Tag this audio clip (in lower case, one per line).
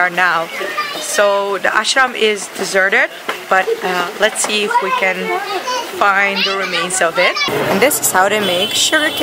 children playing
outside, rural or natural
speech